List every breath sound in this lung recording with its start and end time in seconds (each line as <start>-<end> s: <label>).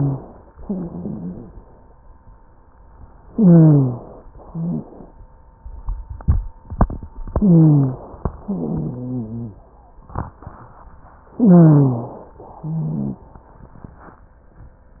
0.59-1.63 s: exhalation
0.59-1.63 s: wheeze
3.26-4.25 s: inhalation
3.26-4.25 s: wheeze
4.33-5.14 s: exhalation
4.46-4.86 s: wheeze
7.34-8.18 s: inhalation
7.34-8.18 s: wheeze
8.41-9.60 s: exhalation
8.41-9.60 s: wheeze
11.35-12.22 s: wheeze
11.35-12.37 s: inhalation
12.43-13.32 s: exhalation
12.64-13.26 s: wheeze